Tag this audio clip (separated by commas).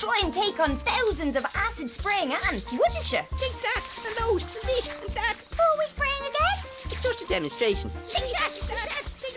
Speech, Music